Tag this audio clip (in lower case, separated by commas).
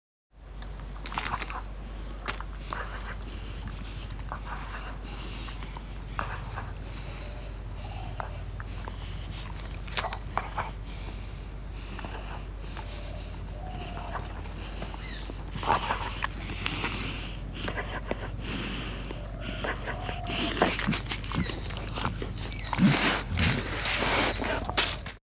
domestic animals, animal, dog